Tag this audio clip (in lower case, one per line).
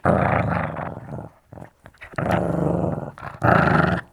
animal
pets
dog
growling